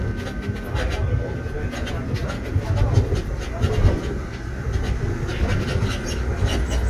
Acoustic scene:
subway train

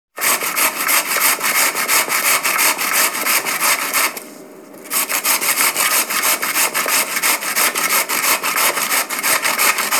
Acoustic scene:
kitchen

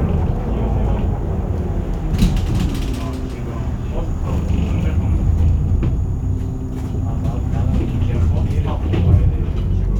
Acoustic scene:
bus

